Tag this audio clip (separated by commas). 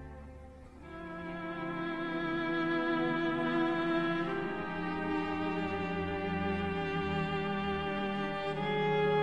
Musical instrument, Music, fiddle